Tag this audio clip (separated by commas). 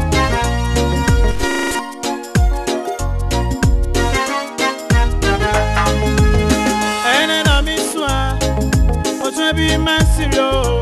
Gospel music, Christmas music, Music